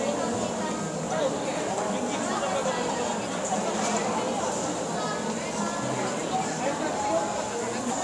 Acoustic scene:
cafe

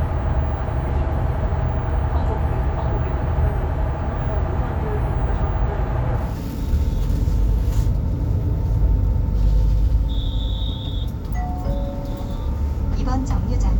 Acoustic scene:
bus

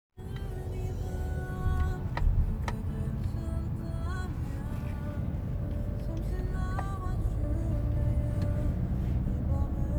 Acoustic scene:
car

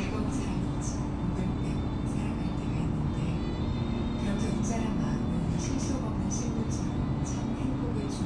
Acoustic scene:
bus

